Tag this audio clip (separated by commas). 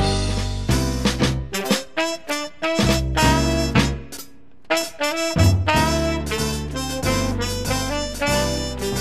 Music, Strum, Guitar, Musical instrument, Plucked string instrument